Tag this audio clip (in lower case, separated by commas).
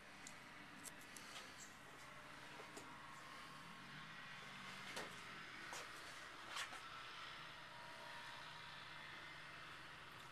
engine